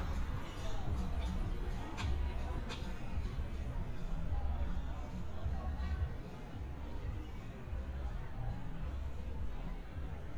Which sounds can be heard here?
music from a moving source, person or small group talking